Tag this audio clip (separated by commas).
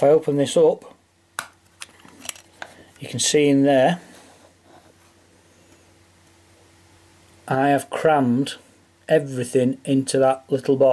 Speech, inside a small room